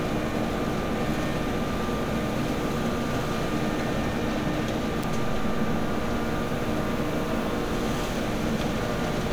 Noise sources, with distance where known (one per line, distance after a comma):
large-sounding engine, near